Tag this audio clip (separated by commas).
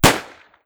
Gunshot, Explosion